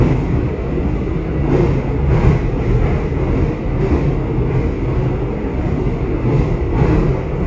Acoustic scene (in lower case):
subway train